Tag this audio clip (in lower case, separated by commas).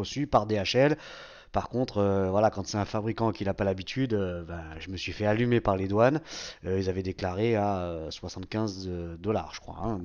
speech